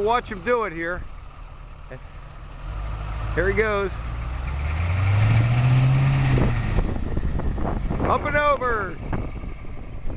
An adult male talk, a motor revs, and the man speaks again